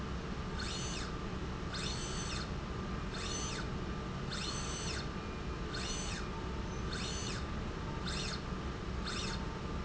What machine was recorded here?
slide rail